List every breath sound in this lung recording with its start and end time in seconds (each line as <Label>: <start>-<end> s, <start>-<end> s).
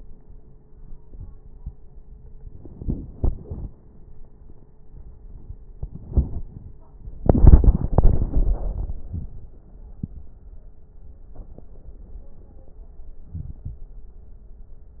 Inhalation: 13.29-13.84 s